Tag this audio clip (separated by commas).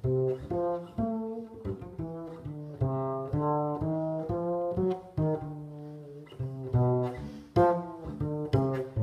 Pizzicato, Bowed string instrument, Double bass, Cello